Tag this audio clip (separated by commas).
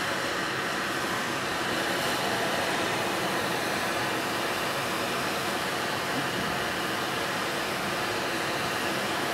Speech